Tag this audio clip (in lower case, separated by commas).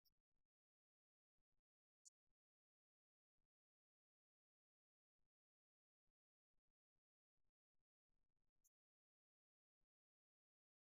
speech